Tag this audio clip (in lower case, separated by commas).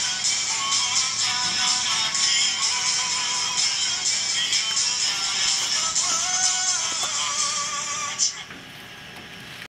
music, male singing